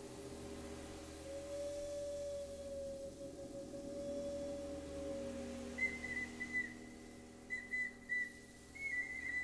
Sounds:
Flute, Wind instrument, Whistle

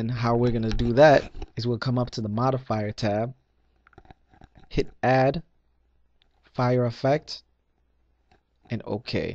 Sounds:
Speech

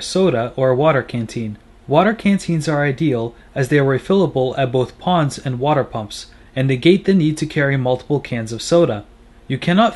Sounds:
Speech

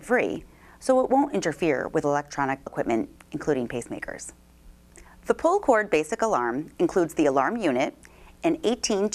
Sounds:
Speech

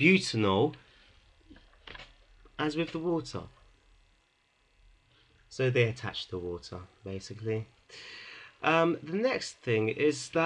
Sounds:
Speech

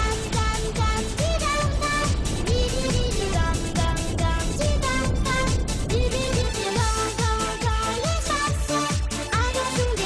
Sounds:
Music

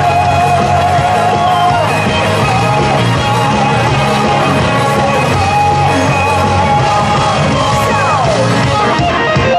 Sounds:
Music, Rock and roll

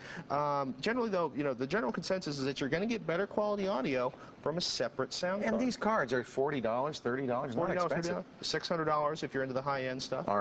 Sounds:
Speech

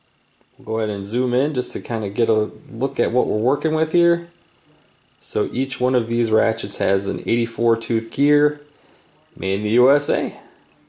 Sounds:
Speech

